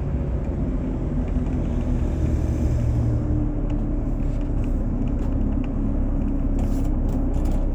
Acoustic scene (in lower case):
bus